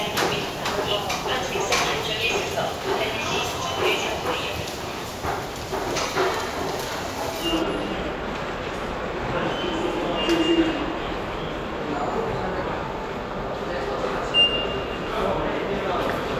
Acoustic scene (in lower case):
subway station